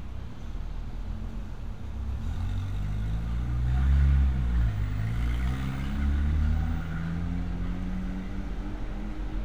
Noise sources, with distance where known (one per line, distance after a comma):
medium-sounding engine, near